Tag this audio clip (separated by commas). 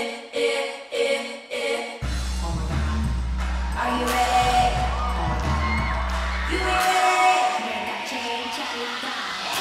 Exciting music, Music